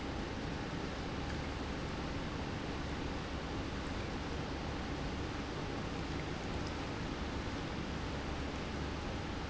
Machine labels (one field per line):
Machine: pump